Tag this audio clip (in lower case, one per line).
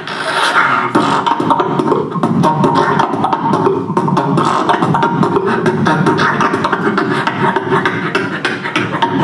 beatboxing